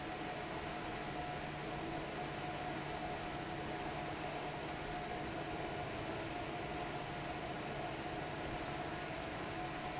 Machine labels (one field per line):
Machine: fan